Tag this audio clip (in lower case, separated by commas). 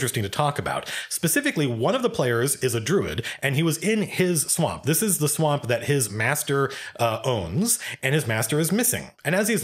inside a small room, speech